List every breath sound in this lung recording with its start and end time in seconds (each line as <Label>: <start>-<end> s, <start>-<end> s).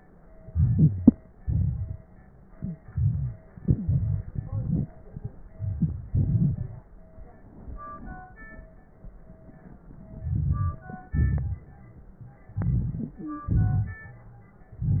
Inhalation: 0.46-1.14 s, 2.56-3.38 s, 4.30-4.98 s, 5.56-6.07 s, 10.15-11.08 s, 12.52-13.45 s, 14.72-15.00 s
Exhalation: 1.35-2.02 s, 3.58-4.27 s, 6.08-6.84 s, 11.06-11.69 s, 13.46-14.09 s
Wheeze: 0.44-1.12 s, 2.89-3.38 s, 3.58-4.27 s, 4.30-4.87 s, 13.24-13.52 s
Crackles: 1.35-2.02 s, 5.56-6.07 s, 6.08-6.84 s, 11.06-11.69 s, 14.72-15.00 s